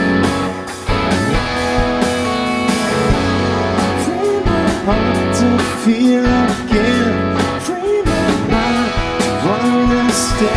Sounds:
music, musical instrument, drum, singing, drum kit, rock music

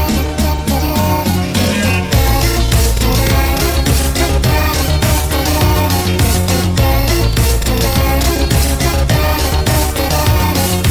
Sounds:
music, soundtrack music

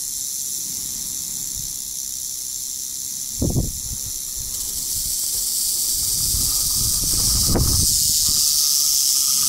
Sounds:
snake rattling

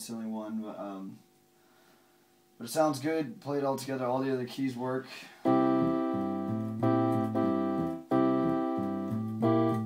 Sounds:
music, keyboard (musical), musical instrument, speech, piano

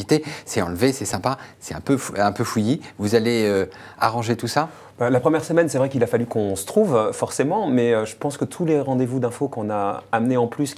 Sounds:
speech

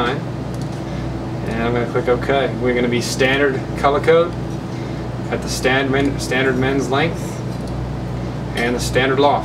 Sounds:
speech

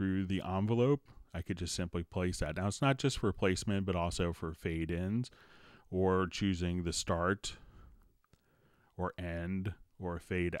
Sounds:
speech

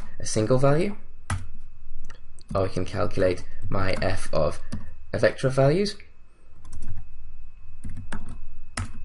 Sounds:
speech

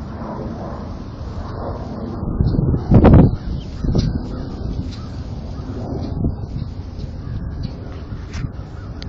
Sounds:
animal

